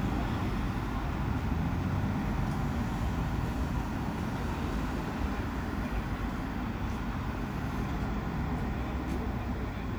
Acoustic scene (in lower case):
street